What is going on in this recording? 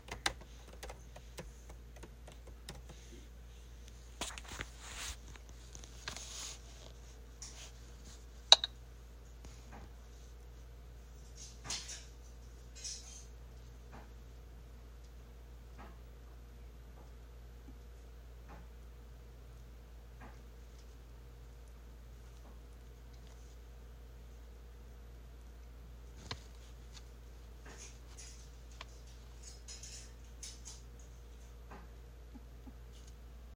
While I was typing , my friend was collecting cans. After that, my friend cut some carrots